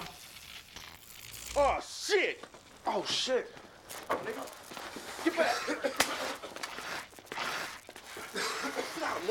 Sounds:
Speech

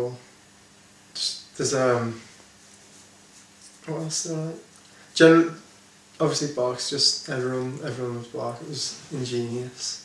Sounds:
Speech

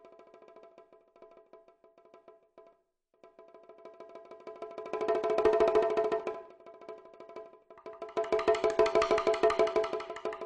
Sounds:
Wood block, Music, Percussion

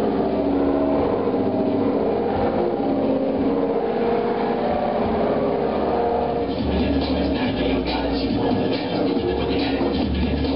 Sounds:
Music

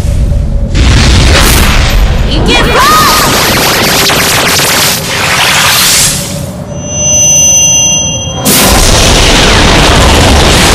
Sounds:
Speech

